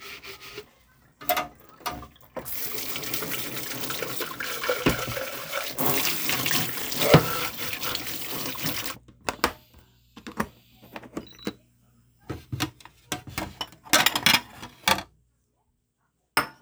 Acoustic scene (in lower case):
kitchen